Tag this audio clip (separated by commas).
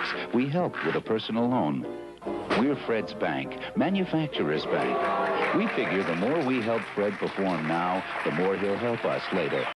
Speech, Music